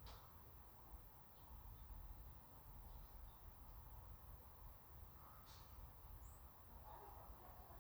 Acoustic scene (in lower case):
park